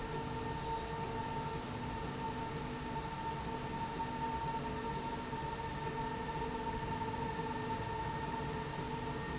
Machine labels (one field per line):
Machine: slide rail